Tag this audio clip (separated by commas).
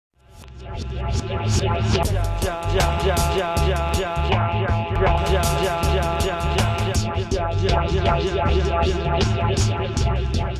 Music, Reggae